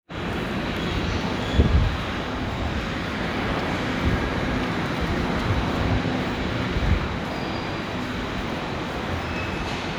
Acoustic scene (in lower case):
subway station